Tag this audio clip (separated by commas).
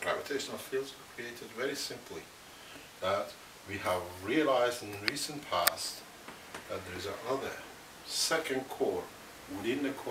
Speech